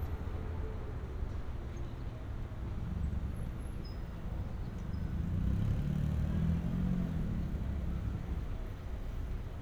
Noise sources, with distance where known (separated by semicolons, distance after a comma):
medium-sounding engine, near